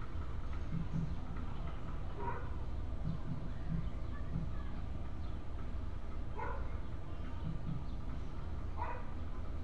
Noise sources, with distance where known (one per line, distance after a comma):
dog barking or whining, far